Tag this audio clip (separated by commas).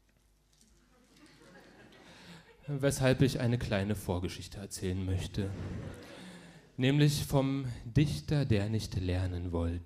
Speech